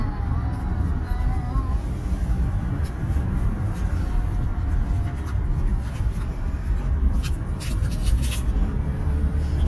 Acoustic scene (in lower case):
car